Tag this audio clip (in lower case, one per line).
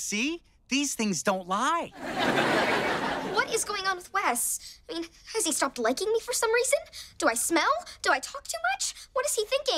speech